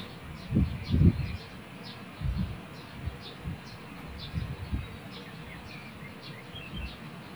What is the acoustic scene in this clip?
park